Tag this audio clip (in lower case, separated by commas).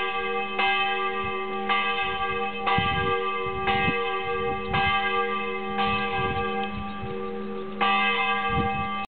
bell, church bell, church bell ringing